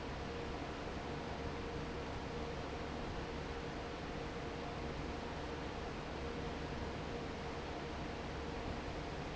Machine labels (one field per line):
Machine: fan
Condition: normal